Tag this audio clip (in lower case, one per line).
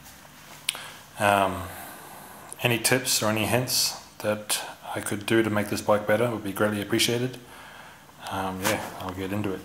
speech